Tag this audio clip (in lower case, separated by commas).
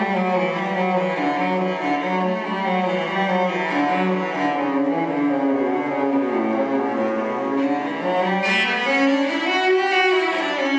music, musical instrument, cello